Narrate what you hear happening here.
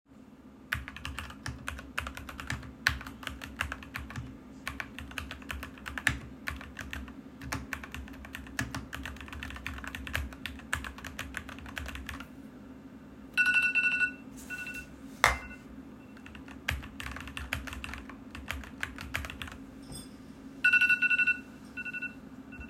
I was typing on the keyboard at my desk then my phone alarm started ringing.